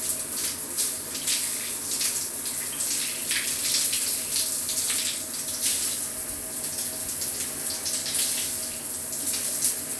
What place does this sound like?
restroom